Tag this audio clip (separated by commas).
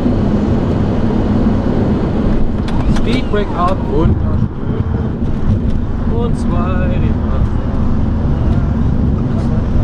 Vehicle, Fixed-wing aircraft